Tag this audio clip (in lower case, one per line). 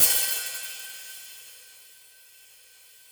musical instrument
hi-hat
cymbal
music
percussion